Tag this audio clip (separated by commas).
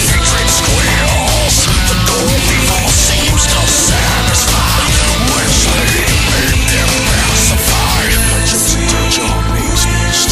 Soundtrack music, Music